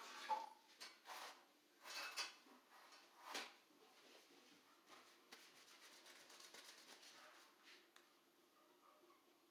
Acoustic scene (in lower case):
restroom